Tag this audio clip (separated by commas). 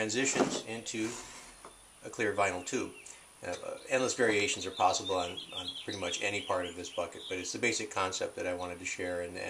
Speech